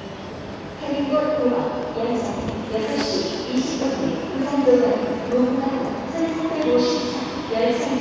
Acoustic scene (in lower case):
crowded indoor space